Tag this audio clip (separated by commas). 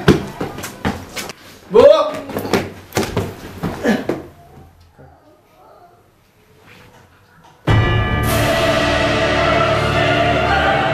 Music, Speech, Run